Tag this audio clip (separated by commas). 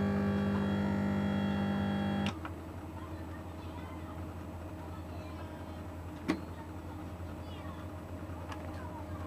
Speech